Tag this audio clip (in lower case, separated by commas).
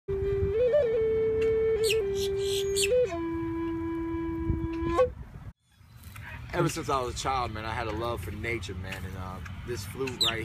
music, speech, outside, rural or natural